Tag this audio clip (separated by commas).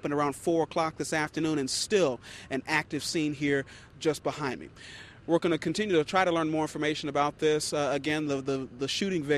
Speech